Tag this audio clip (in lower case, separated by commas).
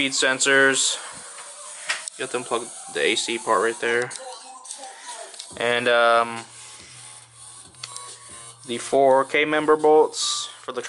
music, speech